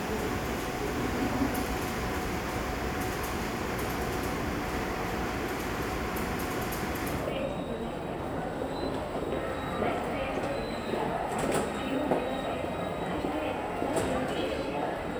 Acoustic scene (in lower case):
subway station